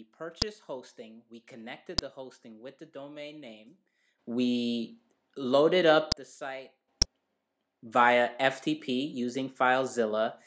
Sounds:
Speech

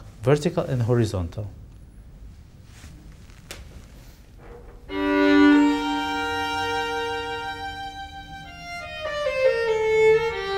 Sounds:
Musical instrument, Music, Classical music, fiddle, Bowed string instrument, Speech

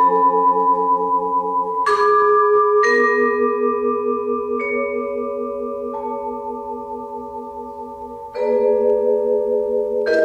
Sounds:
Glockenspiel, xylophone, Mallet percussion

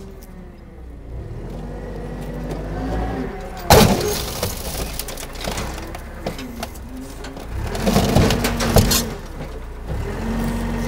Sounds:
Vehicle

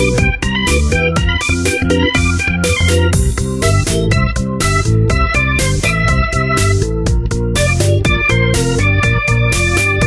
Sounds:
Music

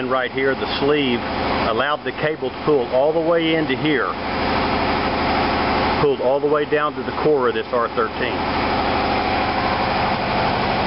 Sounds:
Speech

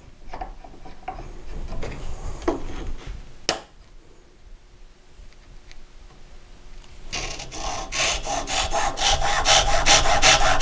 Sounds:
Wood, Tools

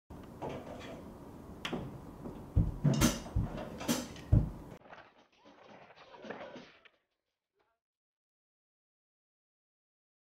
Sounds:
outside, rural or natural, Sliding door, inside a small room, Silence

